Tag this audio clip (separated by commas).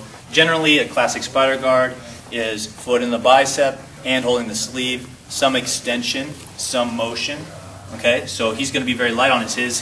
Speech